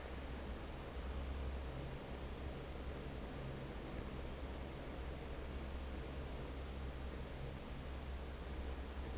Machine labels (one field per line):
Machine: fan